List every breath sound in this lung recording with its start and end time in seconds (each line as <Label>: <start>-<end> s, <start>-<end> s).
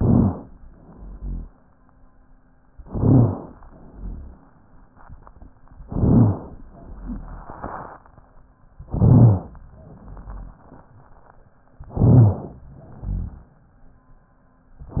Inhalation: 0.00-0.49 s, 2.75-3.55 s, 2.79-3.59 s, 8.82-9.58 s, 11.88-12.64 s
Exhalation: 0.70-1.50 s, 3.70-4.50 s, 6.75-7.63 s, 9.73-10.61 s, 12.75-13.51 s
Rhonchi: 0.70-1.50 s, 3.70-4.50 s, 6.75-7.63 s, 9.73-10.61 s, 12.75-13.51 s
Crackles: 0.00-0.49 s, 2.79-3.59 s, 5.86-6.66 s, 8.82-9.58 s, 11.88-12.64 s